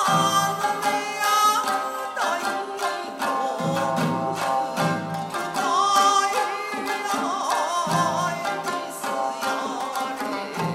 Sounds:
Music, Musical instrument

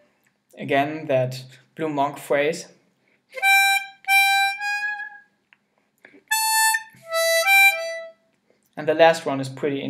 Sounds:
Music, Harmonica, Speech, inside a small room

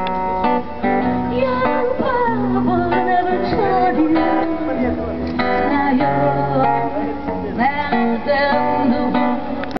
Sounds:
Music, Speech

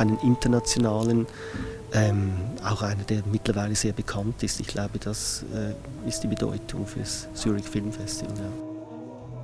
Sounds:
Orchestra, Tender music, Speech, Music

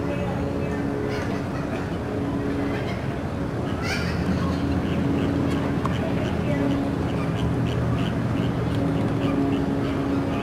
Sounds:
Duck, Music

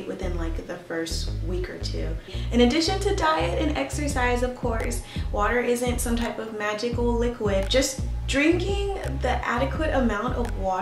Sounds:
Speech, Music

